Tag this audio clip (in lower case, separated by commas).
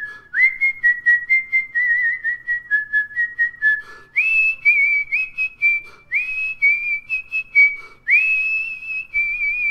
people whistling